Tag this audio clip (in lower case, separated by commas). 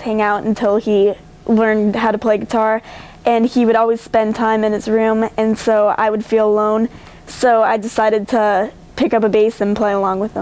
speech